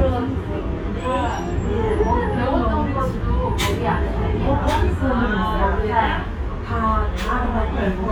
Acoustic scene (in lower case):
restaurant